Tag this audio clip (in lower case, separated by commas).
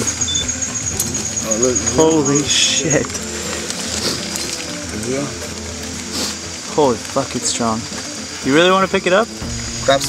outside, rural or natural, speech, music